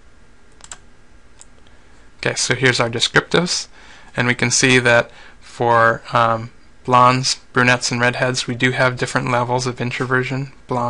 A person talking and clicking sounds